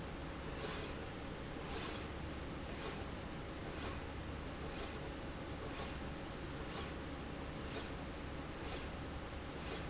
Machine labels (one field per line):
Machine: slide rail